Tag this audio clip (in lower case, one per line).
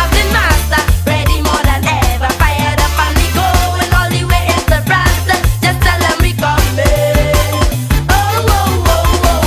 child singing
music